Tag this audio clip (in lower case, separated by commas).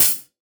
music, musical instrument, hi-hat, cymbal, percussion